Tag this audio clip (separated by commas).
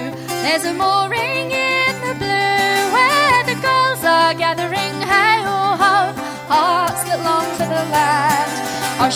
Music, Singing